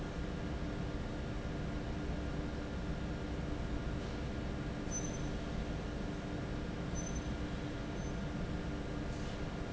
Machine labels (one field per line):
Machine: fan